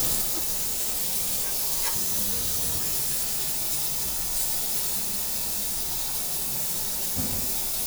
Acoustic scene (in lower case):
restaurant